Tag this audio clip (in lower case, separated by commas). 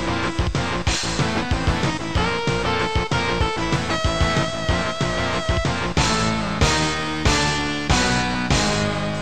music